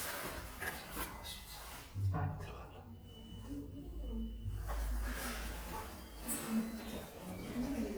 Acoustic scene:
elevator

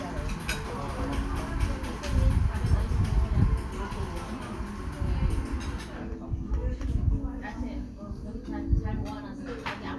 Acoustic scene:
cafe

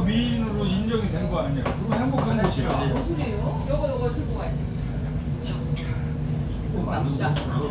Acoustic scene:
crowded indoor space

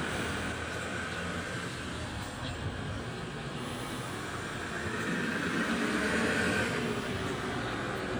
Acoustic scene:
residential area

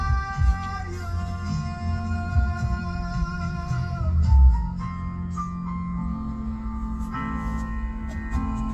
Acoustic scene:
car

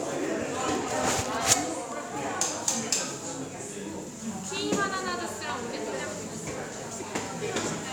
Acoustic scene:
cafe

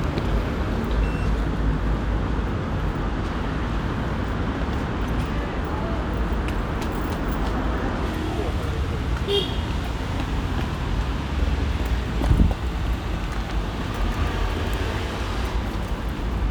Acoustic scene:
residential area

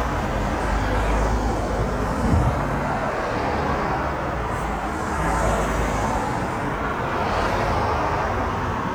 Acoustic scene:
street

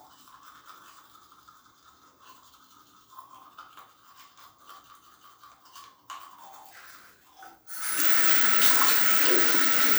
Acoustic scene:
restroom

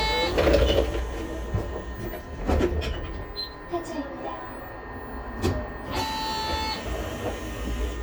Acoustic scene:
bus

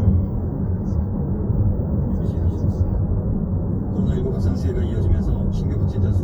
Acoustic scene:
car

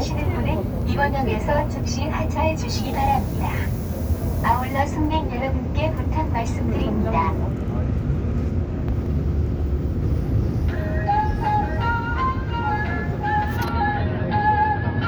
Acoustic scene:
subway train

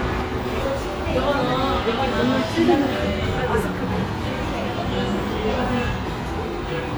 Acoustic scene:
restaurant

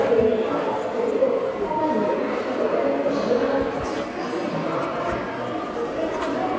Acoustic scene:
subway station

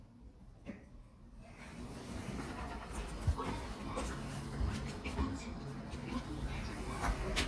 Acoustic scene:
elevator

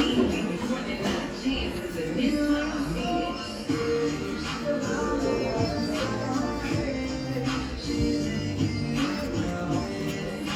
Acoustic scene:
cafe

